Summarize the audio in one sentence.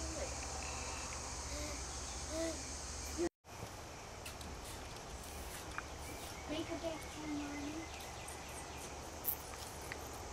Insects buzzing and a child speaking